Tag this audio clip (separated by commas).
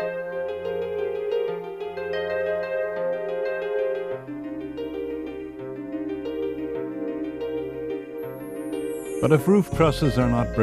Speech, Music